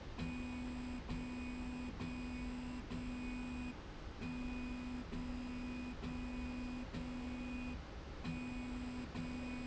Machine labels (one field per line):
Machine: slide rail